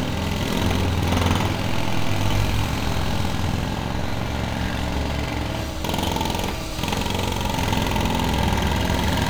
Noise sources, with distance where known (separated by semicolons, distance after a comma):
jackhammer